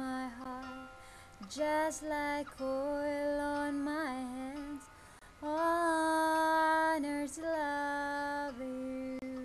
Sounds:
Female singing, Music

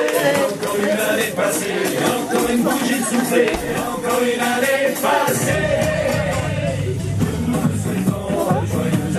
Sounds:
Speech, Music

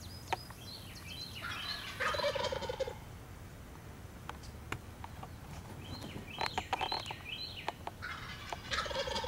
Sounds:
tweet, Bird, Gobble, Turkey, Fowl, bird call

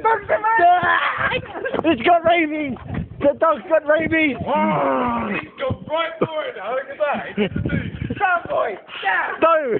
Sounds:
Speech

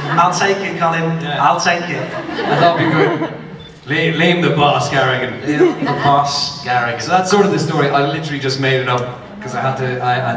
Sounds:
Speech

